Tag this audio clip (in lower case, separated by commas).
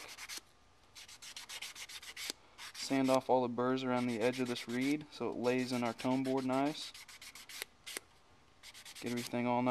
sanding, rub